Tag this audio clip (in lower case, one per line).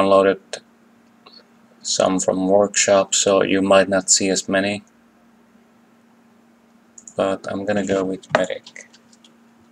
speech